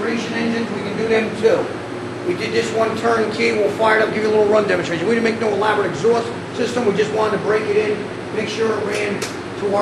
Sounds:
speech

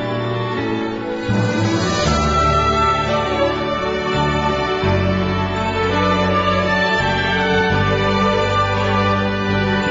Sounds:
tender music, theme music, music

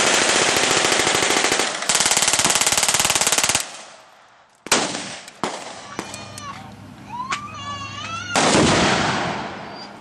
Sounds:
machine gun shooting

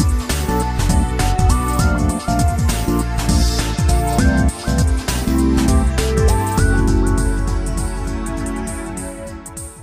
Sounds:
video game music, soundtrack music, theme music, music

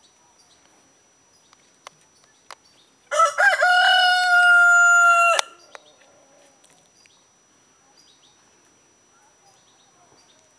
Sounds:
speech, bird, rooster

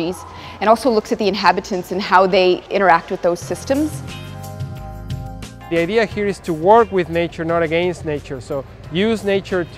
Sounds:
speech, music

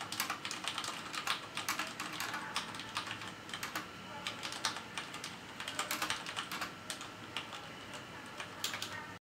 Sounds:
speech

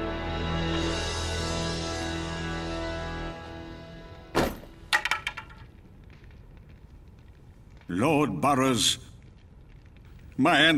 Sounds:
music, speech

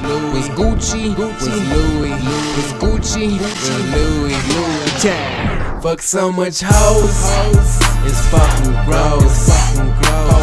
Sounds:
soundtrack music, music

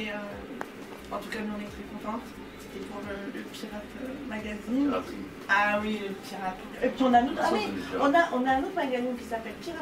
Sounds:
singing, conversation, music, speech

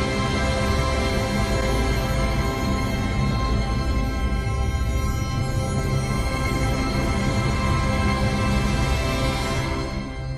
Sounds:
music

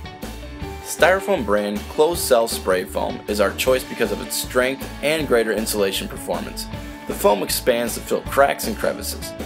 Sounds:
speech, music

